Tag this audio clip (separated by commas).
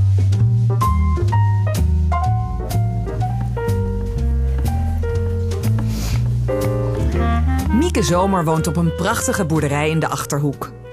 Music, Speech